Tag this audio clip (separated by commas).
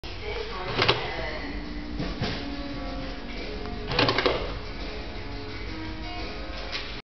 Music, Door, Speech